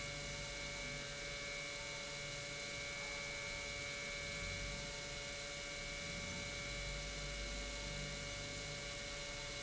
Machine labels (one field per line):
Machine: pump